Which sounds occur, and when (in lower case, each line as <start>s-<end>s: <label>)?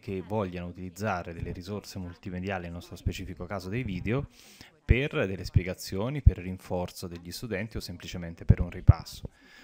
0.0s-0.6s: female speech
0.0s-4.3s: man speaking
0.0s-9.6s: background noise
1.7s-4.8s: female speech
4.3s-4.7s: breathing
4.8s-9.3s: man speaking
6.5s-9.2s: female speech
9.3s-9.6s: breathing